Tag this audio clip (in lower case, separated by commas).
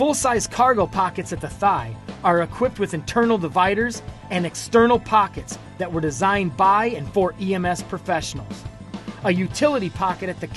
music, speech